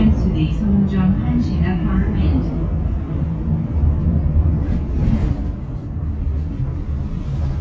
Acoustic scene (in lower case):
bus